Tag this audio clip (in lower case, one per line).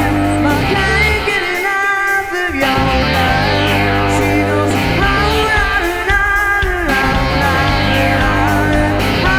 music